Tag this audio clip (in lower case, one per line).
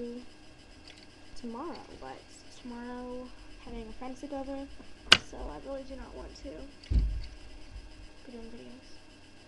speech